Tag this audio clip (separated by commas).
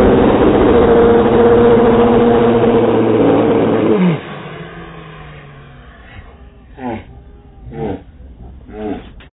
Vehicle, Motor vehicle (road), Car